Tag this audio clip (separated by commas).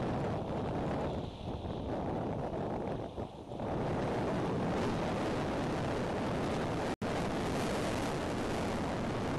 Wind noise (microphone), Wind